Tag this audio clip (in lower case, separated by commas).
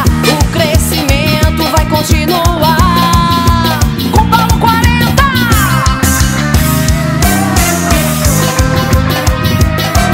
music